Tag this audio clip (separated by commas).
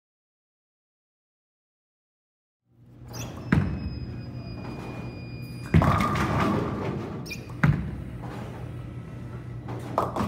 bowling impact